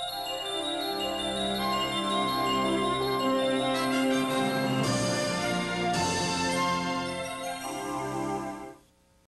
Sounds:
Television, Music

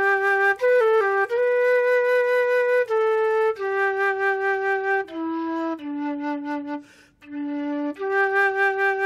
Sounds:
playing flute

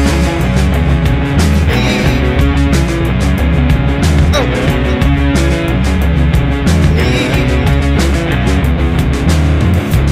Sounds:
Musical instrument, Grunge, Bass guitar, Guitar, Singing, Music, Drum

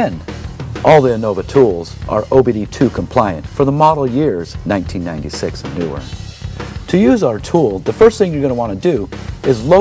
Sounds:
Speech, Music

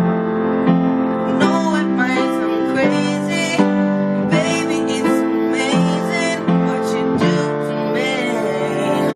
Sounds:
Music, Male singing

